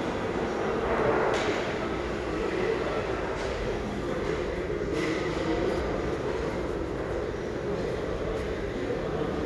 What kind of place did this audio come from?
restaurant